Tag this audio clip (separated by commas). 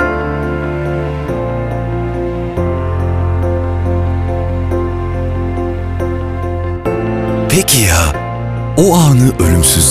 Speech, Music